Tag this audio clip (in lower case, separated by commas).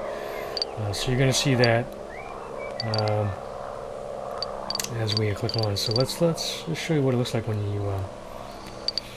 outside, urban or man-made, speech, inside a small room